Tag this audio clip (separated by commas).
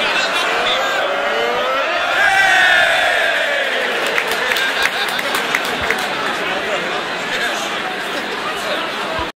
Speech